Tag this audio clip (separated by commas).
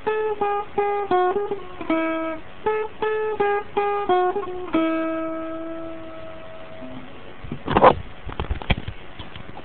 Music, Acoustic guitar, Guitar, Plucked string instrument, Musical instrument